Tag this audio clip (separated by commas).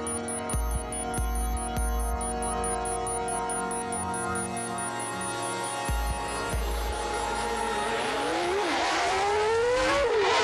Music